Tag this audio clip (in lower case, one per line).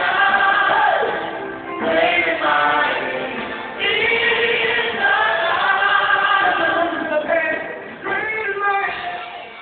music
singing